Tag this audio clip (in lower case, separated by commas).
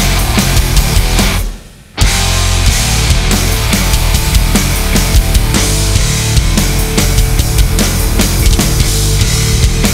music, bass drum, musical instrument, drum kit, drum